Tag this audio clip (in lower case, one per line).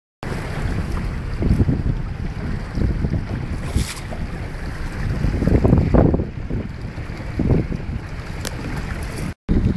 vehicle
sailing ship
sailing
water vehicle